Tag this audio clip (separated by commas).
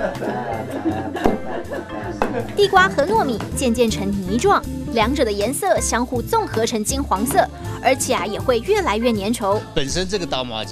Speech, Music